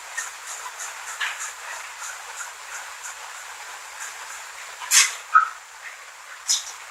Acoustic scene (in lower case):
restroom